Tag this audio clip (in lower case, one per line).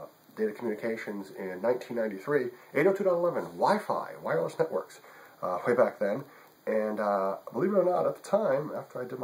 speech